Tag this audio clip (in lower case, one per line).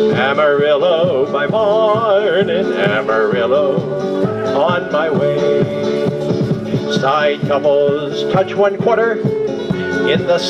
male singing
music